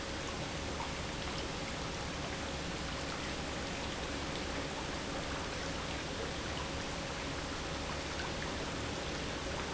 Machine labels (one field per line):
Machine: pump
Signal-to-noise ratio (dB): -6 dB